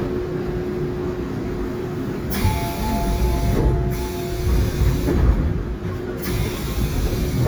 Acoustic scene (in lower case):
subway train